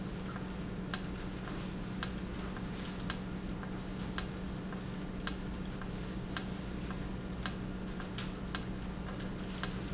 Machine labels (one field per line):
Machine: valve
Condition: normal